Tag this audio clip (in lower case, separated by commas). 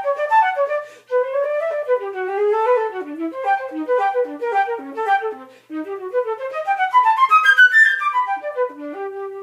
wind instrument, inside a small room, music, flute, musical instrument